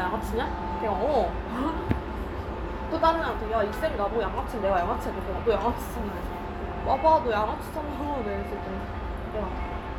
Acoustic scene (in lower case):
restaurant